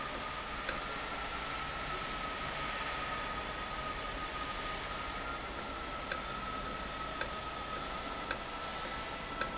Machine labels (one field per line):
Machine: valve